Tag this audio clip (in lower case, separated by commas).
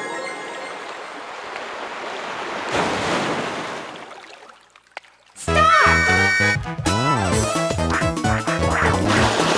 music, speech